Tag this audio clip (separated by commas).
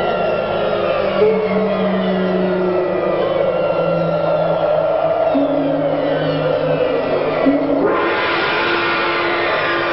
Music